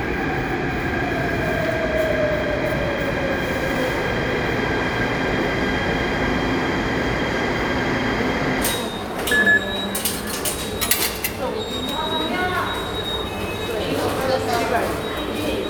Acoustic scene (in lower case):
subway station